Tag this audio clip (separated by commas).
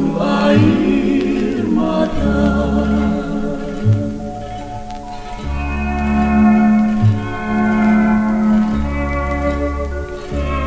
Music